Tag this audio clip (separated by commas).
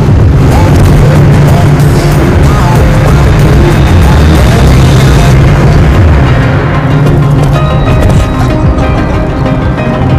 Music